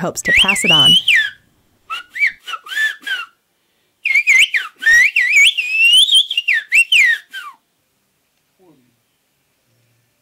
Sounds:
Whistling

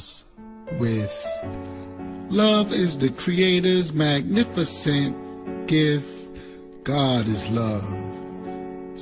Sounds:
Male speech, Narration, Speech, Music

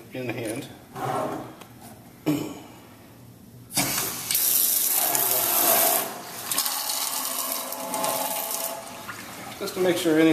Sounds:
Water, Sink (filling or washing), faucet, Speech

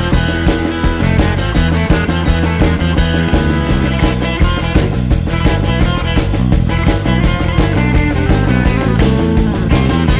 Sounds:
Music, Psychedelic rock

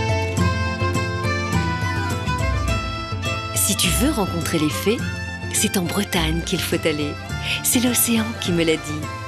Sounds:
Speech, Music

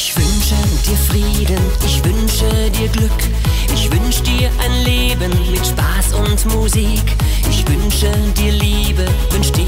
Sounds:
Music

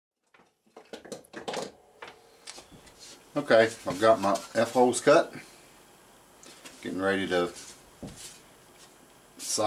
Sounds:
Speech

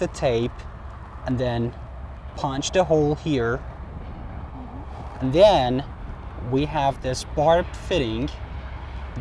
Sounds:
Speech

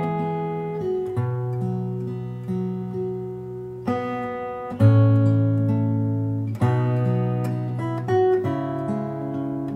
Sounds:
Acoustic guitar, Strum, Music, Musical instrument, Guitar, Plucked string instrument

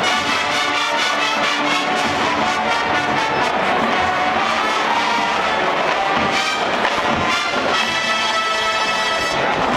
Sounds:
Music

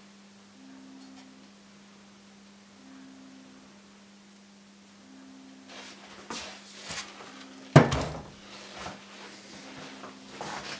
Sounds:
Tools

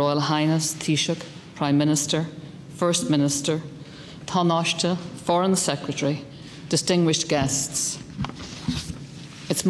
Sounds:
Speech, Female speech, Narration

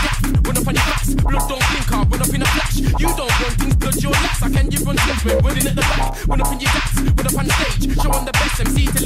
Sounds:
Hip hop music, Music

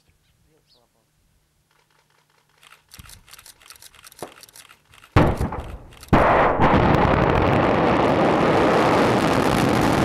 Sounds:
missile launch

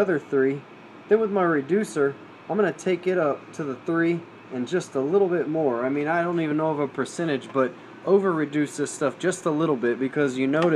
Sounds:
Speech

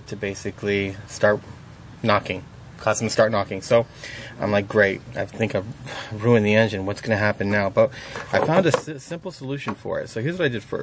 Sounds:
Speech

